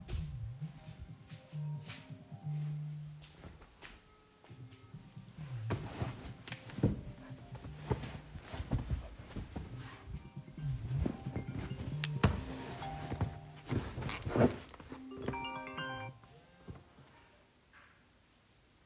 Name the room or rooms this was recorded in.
living room